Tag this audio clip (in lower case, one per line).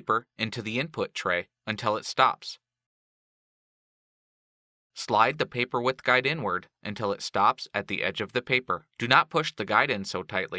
speech